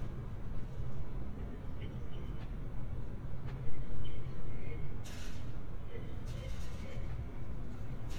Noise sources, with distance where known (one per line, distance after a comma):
person or small group talking, far